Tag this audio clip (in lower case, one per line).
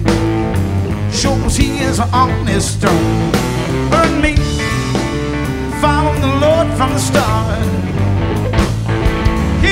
music